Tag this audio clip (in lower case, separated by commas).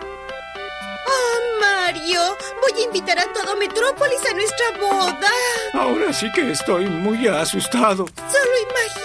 music, speech